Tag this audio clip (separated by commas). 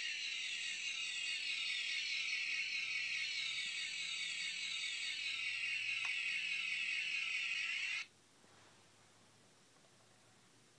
inside a small room